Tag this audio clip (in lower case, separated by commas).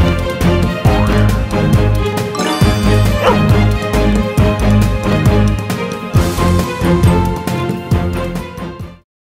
music